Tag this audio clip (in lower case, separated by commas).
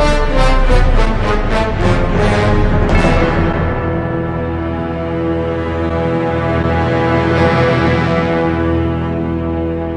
theme music